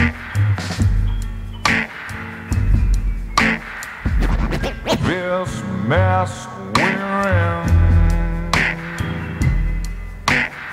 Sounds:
music

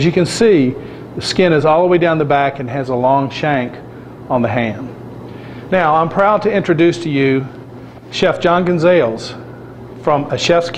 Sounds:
speech

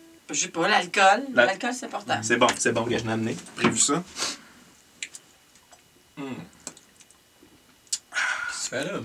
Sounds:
speech

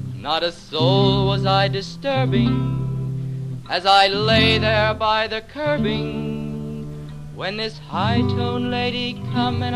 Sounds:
music

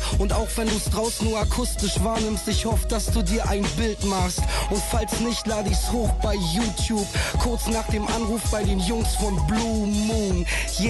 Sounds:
music

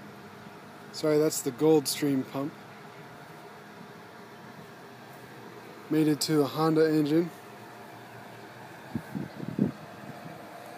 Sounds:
speech

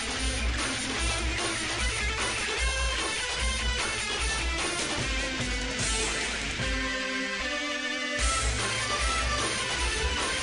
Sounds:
music

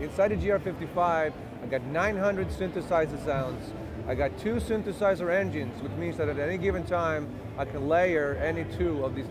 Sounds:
speech

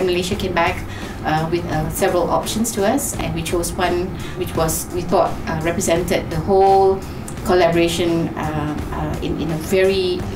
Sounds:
speech
music

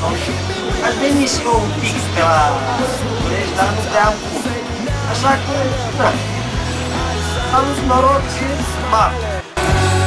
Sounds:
music
speech

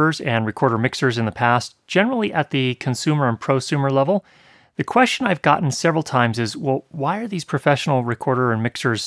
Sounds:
speech

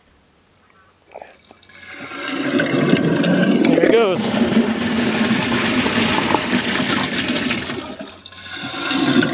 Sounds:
toilet flushing

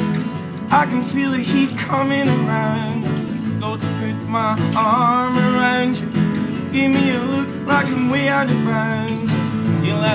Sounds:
soul music
middle eastern music
music

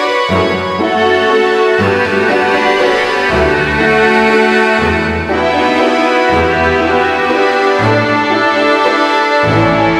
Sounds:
music

